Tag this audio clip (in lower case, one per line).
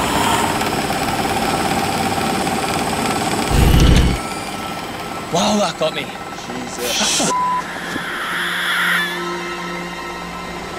music
outside, rural or natural
speech